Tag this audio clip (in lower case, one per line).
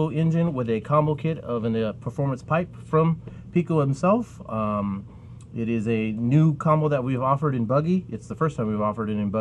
speech